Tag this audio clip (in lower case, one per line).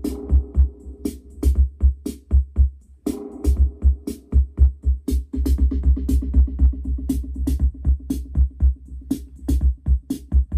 drum machine
musical instrument
music